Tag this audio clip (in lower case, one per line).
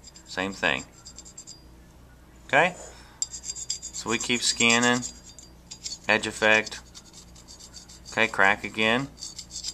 speech